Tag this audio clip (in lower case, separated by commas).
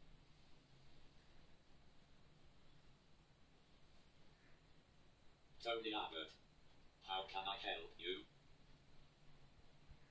man speaking, speech, narration